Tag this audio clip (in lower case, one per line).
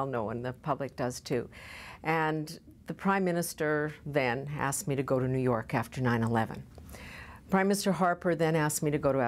inside a small room
speech